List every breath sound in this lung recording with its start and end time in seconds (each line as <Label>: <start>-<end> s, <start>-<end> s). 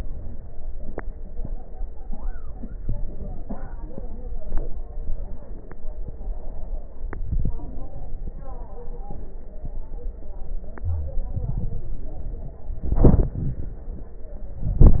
Inhalation: 7.25-7.53 s, 11.28-12.02 s
Wheeze: 10.83-11.28 s
Crackles: 11.28-12.02 s